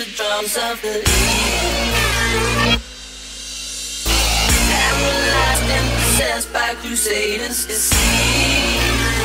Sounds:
music

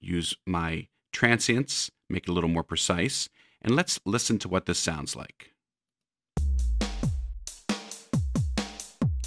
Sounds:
music, speech

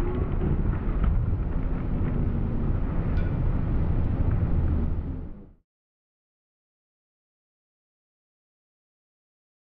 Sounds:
wind noise (microphone), wind

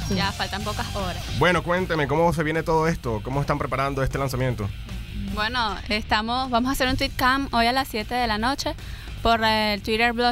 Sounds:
speech, radio, music

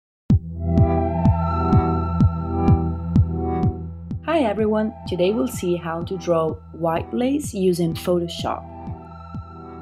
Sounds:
speech, music, synthesizer

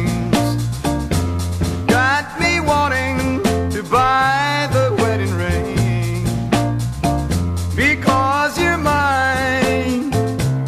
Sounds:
music

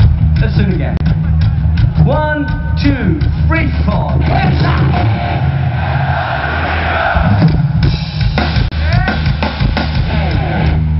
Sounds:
speech, male speech, music

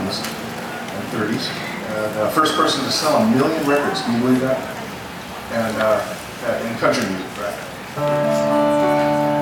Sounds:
speech, music

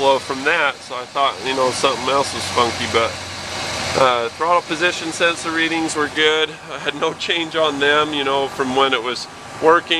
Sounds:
car engine idling

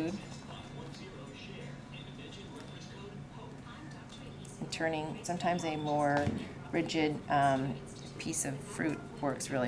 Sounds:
speech

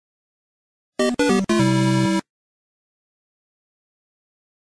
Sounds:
music, video game music

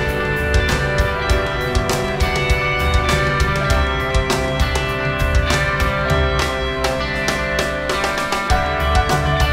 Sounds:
music

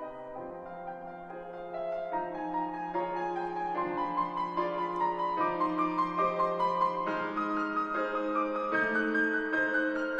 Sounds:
music

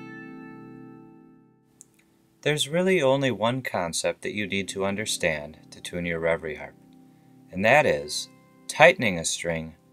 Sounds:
guitar, musical instrument, music, speech, plucked string instrument

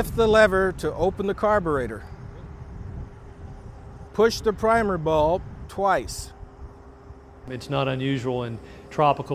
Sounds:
speech

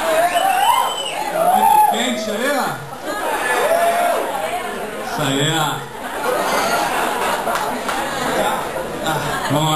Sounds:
speech

